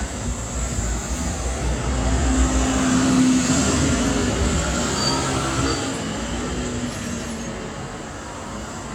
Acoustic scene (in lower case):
street